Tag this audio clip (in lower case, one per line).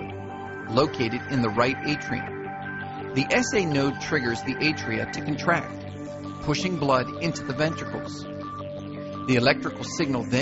speech
music